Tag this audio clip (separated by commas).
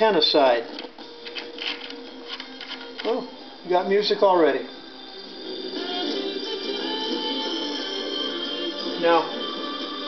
Speech, Radio, Music